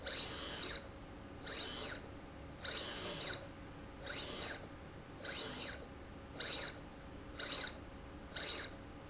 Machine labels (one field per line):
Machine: slide rail